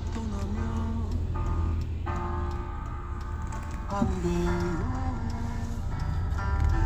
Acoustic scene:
car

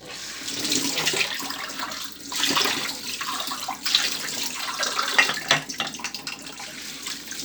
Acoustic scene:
kitchen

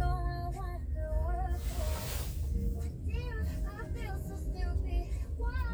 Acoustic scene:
car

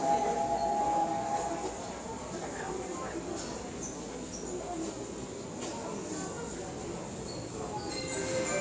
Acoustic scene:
subway station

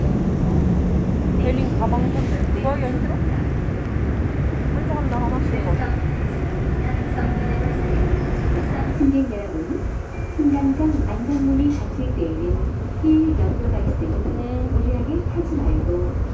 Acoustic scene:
subway train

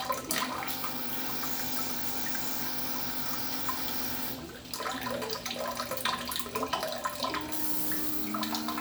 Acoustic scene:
restroom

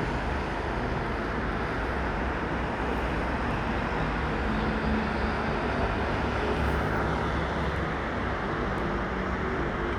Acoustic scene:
street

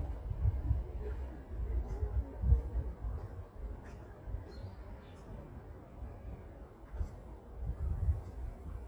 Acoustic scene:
residential area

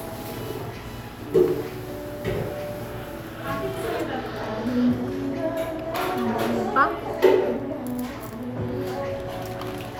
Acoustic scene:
cafe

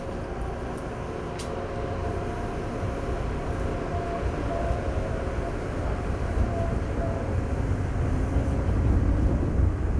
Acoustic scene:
subway train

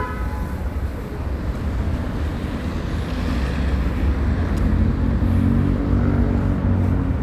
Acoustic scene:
residential area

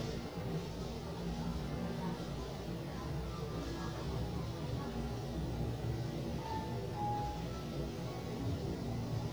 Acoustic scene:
elevator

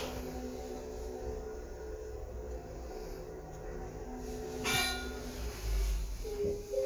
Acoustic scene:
elevator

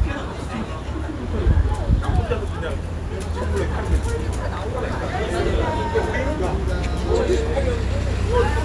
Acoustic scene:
restaurant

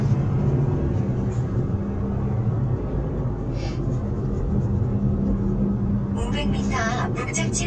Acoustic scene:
car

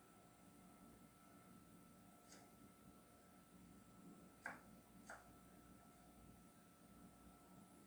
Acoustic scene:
kitchen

